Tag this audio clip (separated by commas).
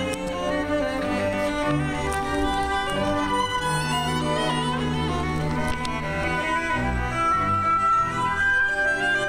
Violin, Musical instrument, Music